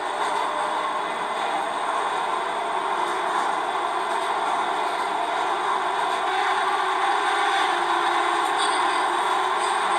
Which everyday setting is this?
subway train